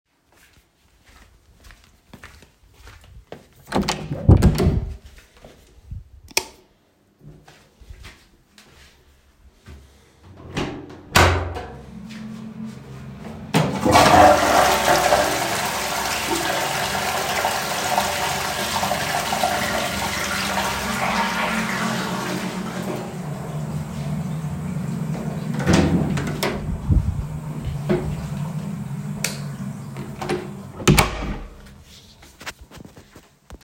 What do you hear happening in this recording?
I walk to the toilet door, open it, I flush the toilet, meanwhile the toilet fan is running, and then I turn off the light and I close the door.